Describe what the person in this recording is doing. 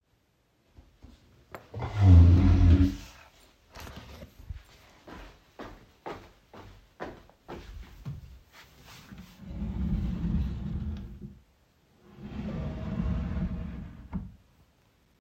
I got up from my chair and walked to the drawer, opened it after finding what i needed I closed the drawer.